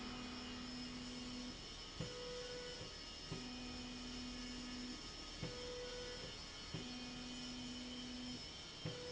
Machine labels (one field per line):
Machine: slide rail